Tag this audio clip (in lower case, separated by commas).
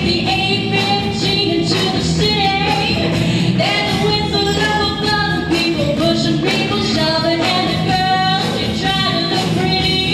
female singing, music